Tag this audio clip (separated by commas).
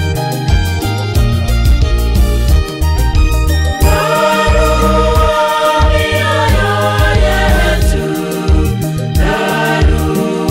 Music, Singing